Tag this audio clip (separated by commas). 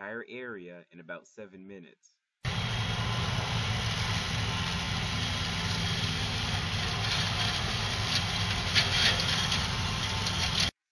Speech, outside, rural or natural, Vehicle